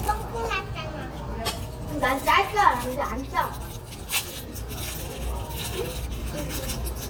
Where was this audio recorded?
in a restaurant